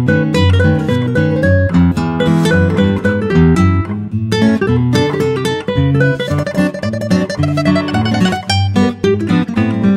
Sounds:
Plucked string instrument, Acoustic guitar, Music, Strum, Musical instrument, Guitar

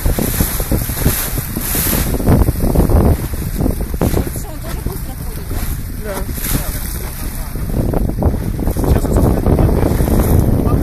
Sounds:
Speech, Vehicle, Boat

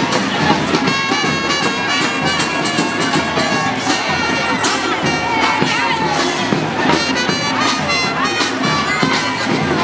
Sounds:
people marching

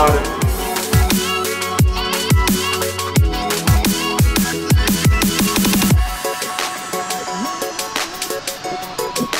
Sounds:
Electronic music, Dubstep, Music

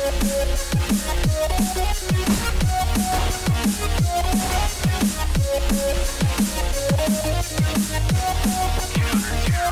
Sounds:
Music

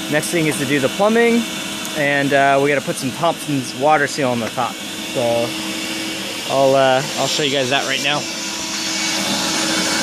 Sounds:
Speech

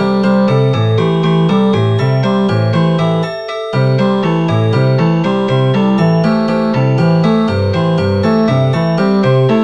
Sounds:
Music

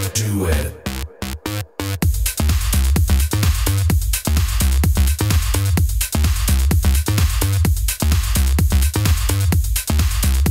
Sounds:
House music, Music, Electronic music

